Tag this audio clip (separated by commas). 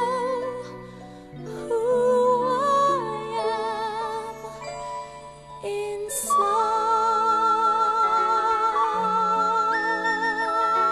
Music